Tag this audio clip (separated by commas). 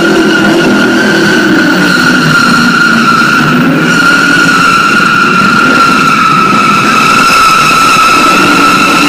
Car passing by